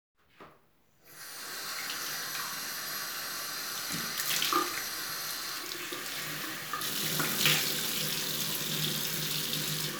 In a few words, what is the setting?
restroom